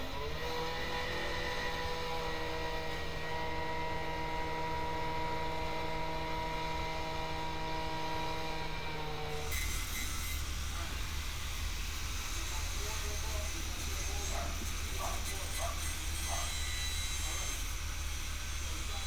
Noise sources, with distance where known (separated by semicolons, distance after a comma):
small or medium rotating saw